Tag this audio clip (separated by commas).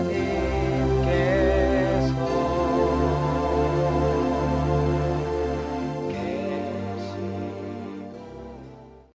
Music, New-age music